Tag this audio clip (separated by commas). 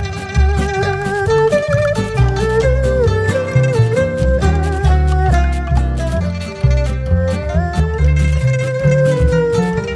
Music